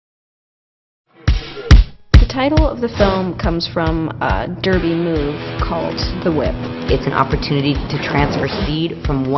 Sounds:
speech, music

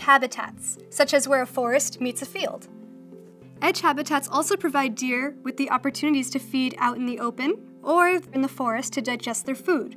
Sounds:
speech

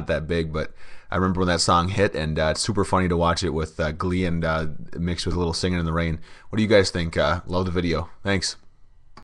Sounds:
speech

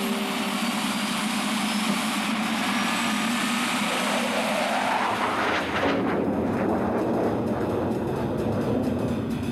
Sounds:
music

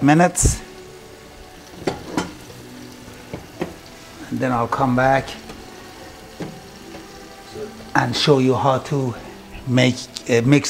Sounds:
speech, music, inside a small room

